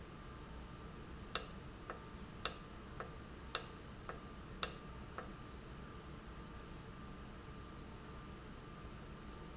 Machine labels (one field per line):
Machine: valve